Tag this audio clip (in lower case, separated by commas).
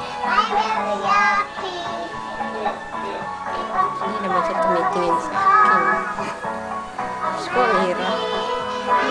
speech, music, child singing